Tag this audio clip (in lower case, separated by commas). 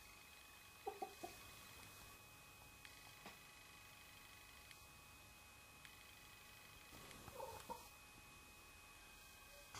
chicken